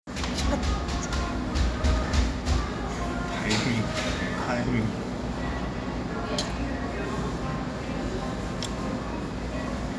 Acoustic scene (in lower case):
cafe